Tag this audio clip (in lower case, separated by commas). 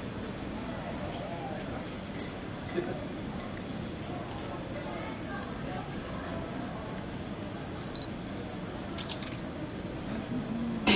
speech